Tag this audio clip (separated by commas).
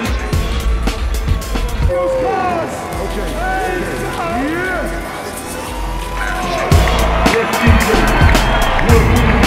Speech, Music